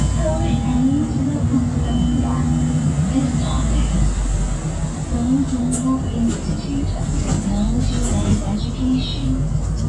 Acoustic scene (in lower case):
bus